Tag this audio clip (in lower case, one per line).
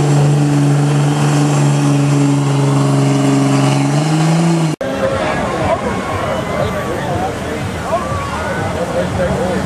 speech
truck
vehicle
music